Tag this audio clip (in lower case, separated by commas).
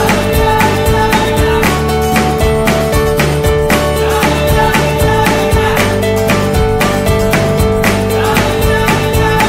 music